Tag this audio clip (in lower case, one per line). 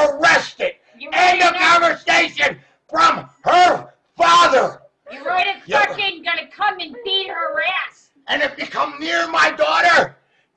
speech